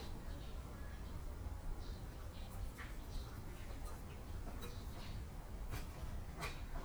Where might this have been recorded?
in a park